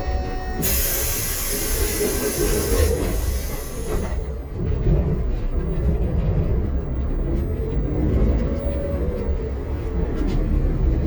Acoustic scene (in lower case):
bus